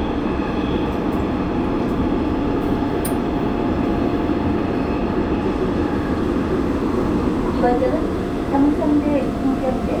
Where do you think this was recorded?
on a subway train